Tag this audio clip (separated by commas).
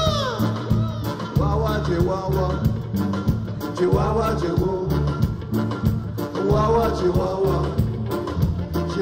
Music